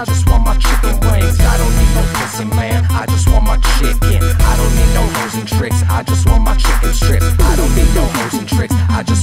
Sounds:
Music, Hip hop music

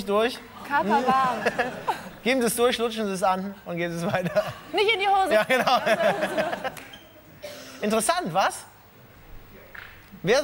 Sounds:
playing volleyball

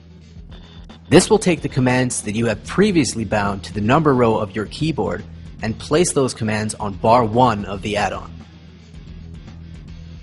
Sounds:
Music, Speech

